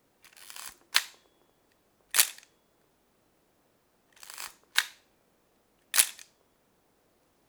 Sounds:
mechanisms
camera

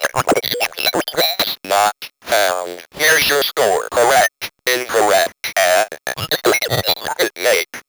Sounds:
speech
human voice

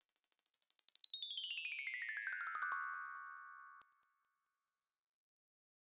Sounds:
bell
chime

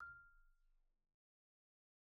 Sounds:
musical instrument
music
marimba
percussion
mallet percussion

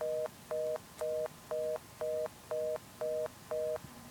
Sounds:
telephone
alarm

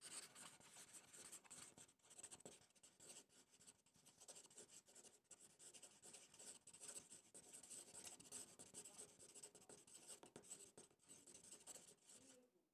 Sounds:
writing
home sounds

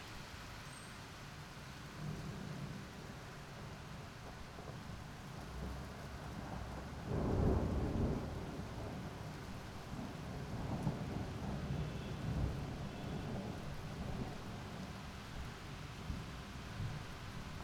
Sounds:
rain
water

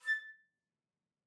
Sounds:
woodwind instrument
musical instrument
music

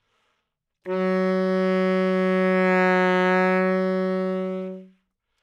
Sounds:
musical instrument
music
wind instrument

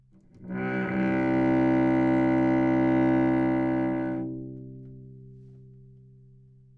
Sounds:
musical instrument
music
bowed string instrument

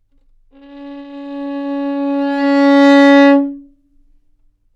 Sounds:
musical instrument
music
bowed string instrument

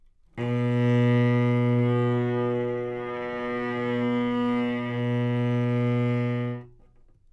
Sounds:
musical instrument
bowed string instrument
music

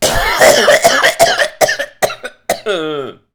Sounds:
respiratory sounds
cough

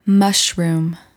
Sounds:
human voice
speech
woman speaking

